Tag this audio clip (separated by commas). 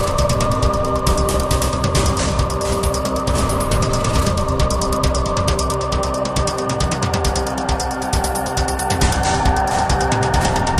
Music